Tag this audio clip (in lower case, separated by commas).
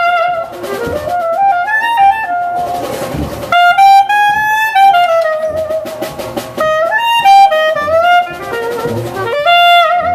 orchestra, jazz, music, musical instrument, woodwind instrument, brass instrument